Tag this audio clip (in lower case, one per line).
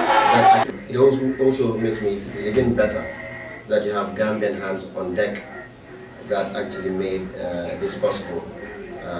speech